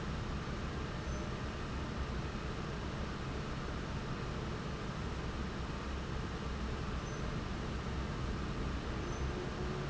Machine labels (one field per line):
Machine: fan